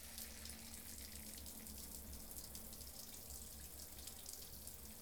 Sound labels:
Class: water tap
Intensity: medium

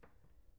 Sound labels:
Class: cupboard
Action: opening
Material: wooden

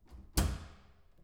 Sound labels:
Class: door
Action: closing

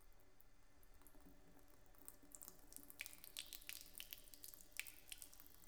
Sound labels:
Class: water tap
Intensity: low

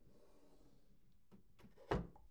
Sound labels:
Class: drawer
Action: closing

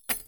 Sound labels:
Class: object falling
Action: being thrown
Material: metal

